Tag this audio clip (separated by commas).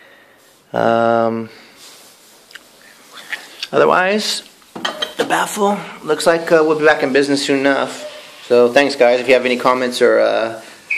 Speech